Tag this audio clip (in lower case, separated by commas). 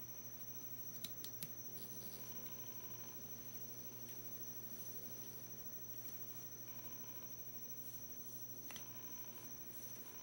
silence, inside a small room